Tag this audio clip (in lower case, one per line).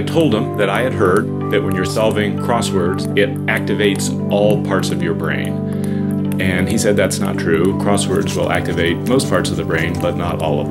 ping
music
speech